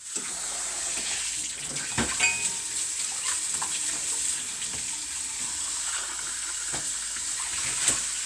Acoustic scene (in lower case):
kitchen